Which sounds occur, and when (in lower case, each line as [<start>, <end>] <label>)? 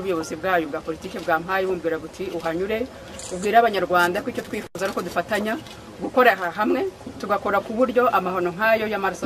[0.00, 2.88] female speech
[0.00, 9.25] background noise
[0.86, 1.35] camera
[2.32, 2.53] camera
[3.11, 3.55] camera
[3.26, 5.67] female speech
[4.71, 5.15] camera
[5.59, 5.77] camera
[5.65, 5.94] man speaking
[5.97, 6.89] female speech
[7.16, 9.25] female speech